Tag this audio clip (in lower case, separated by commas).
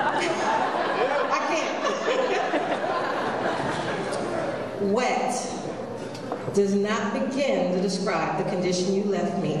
speech